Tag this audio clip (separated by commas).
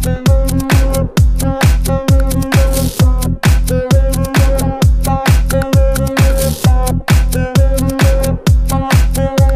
Music